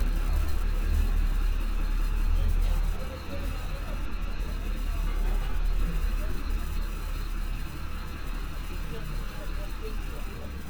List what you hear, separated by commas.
large-sounding engine